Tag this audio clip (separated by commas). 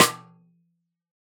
Percussion, Musical instrument, Music, Snare drum, Drum